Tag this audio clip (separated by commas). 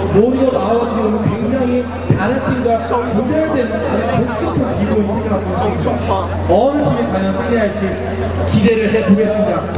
Speech